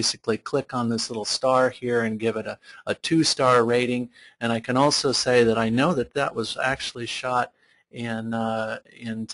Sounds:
Speech

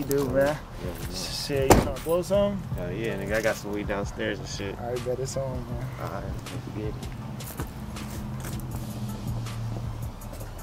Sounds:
Music, Speech

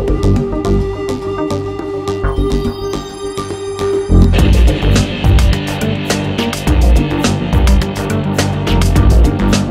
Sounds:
Music

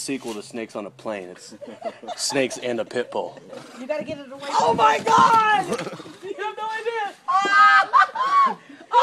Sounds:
Speech

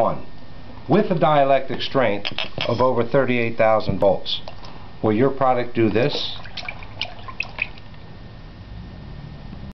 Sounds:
Speech

